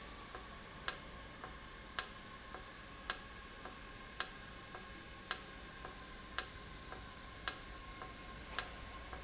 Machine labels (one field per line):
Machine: valve